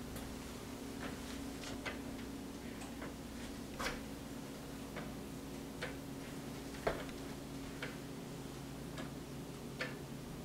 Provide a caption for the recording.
Shuffling and tapping